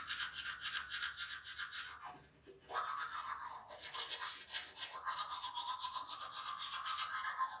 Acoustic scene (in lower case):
restroom